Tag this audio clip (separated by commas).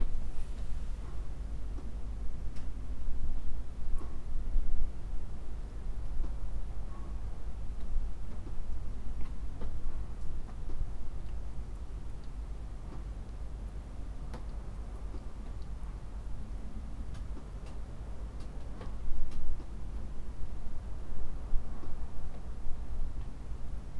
Tools, Hammer